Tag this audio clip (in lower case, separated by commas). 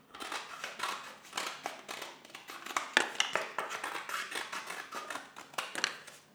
scissors, domestic sounds